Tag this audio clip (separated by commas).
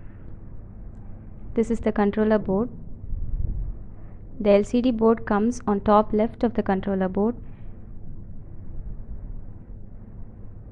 Speech